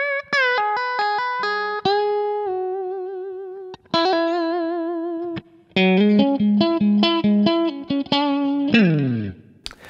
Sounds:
plucked string instrument
guitar
electric guitar
music
musical instrument

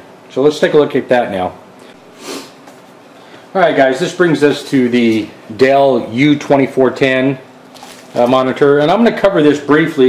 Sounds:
speech

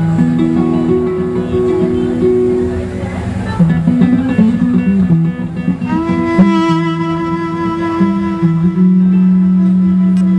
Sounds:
musical instrument
music
fiddle

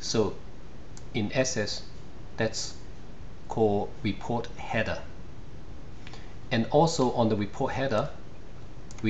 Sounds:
speech

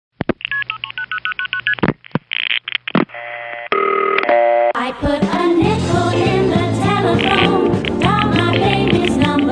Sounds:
music
telephone
dtmf

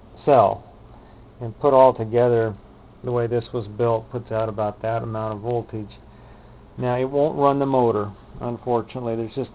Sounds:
speech

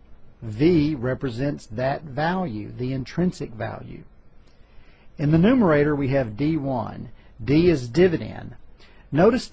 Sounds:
speech

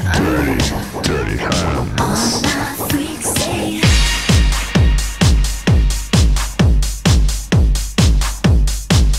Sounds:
dance music

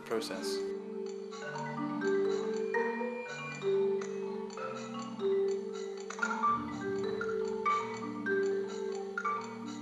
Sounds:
speech
percussion
music

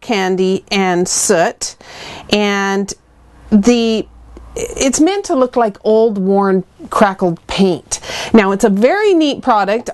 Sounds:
speech

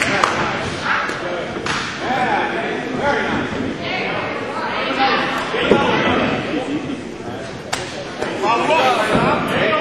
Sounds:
speech
inside a large room or hall

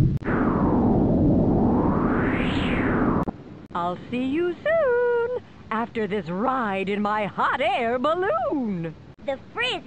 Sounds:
speech

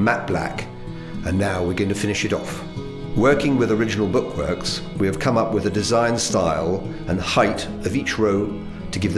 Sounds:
music
speech

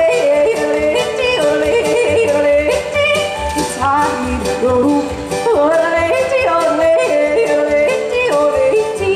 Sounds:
music

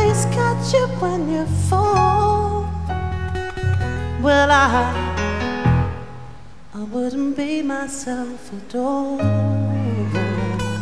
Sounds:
singing

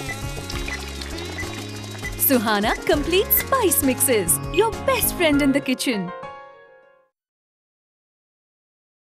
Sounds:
speech
music

